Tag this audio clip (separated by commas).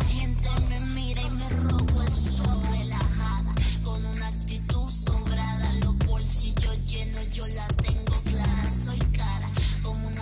Music, inside a small room